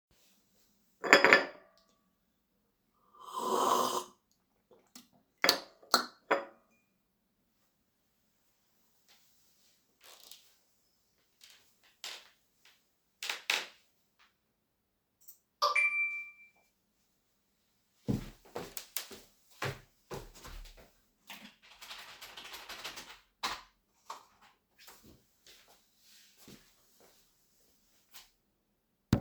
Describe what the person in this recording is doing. I took a sip of coffee while standing at a table, the floor creaking beneath me. Finally, I received a notification, went to my PC, and continued working there.